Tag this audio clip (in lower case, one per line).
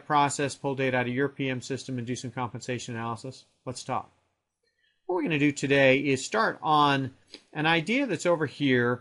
speech